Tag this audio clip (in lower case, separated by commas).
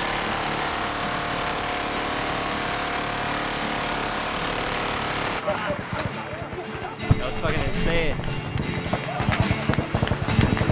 machine gun shooting